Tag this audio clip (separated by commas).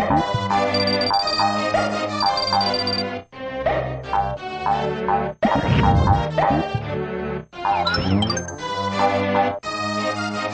Music